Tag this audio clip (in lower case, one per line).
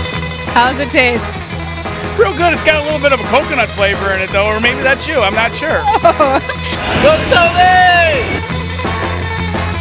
music
speech